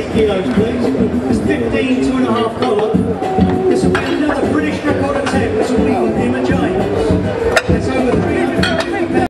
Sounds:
Music, Speech

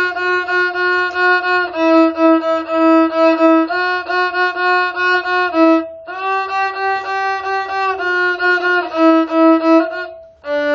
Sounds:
fiddle, Bowed string instrument

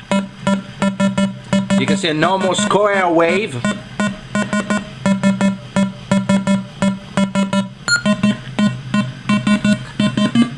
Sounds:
Speech

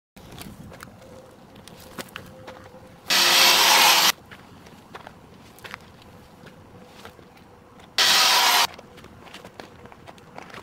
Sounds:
Car, Race car

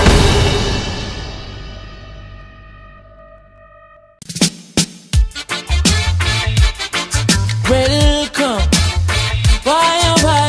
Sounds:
Hip hop music, Music

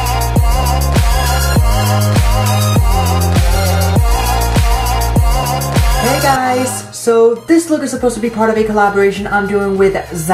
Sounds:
Speech, Music

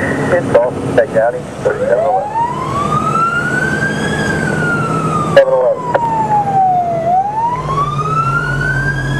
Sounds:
Vehicle, fire truck (siren), Truck, Speech, Emergency vehicle

